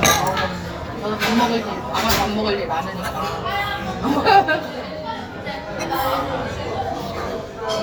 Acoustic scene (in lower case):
restaurant